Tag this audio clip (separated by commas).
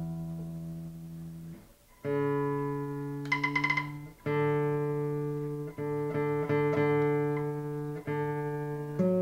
Classical music, playing acoustic guitar, Bowed string instrument, Guitar, Acoustic guitar, Musical instrument, Music, Plucked string instrument